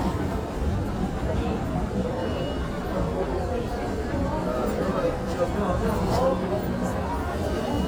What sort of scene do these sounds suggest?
crowded indoor space